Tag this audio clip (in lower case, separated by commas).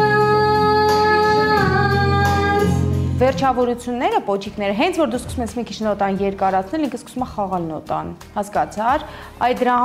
music, inside a large room or hall, female singing, speech, singing